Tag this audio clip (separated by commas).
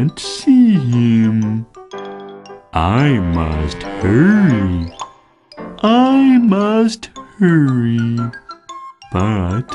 Music, Speech, Music for children